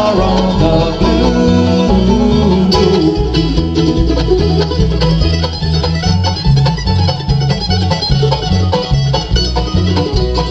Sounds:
guitar
musical instrument
plucked string instrument
music

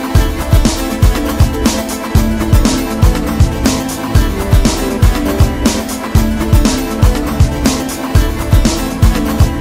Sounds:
music

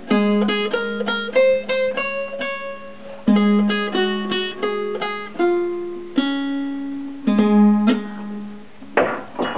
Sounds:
playing acoustic guitar
acoustic guitar
strum
music
guitar
plucked string instrument
musical instrument

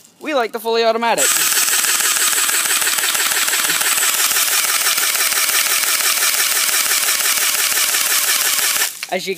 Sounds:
speech

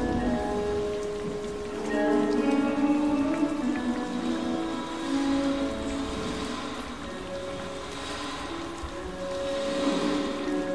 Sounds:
electronic music
music

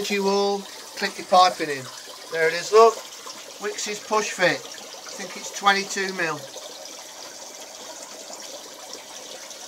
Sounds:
water tap
water

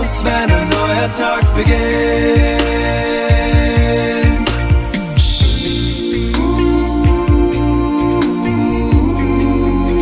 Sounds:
music
vocal music
soul music

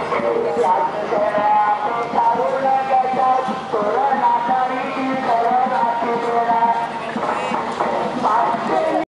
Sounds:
traditional music
music

